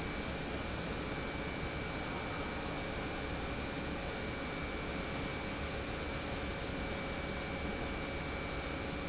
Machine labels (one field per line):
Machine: pump